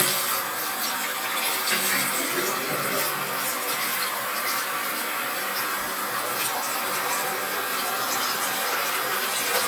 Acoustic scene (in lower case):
restroom